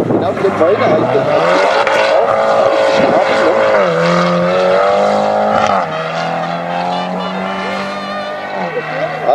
Wind blows and people speak before a car speeds into the distance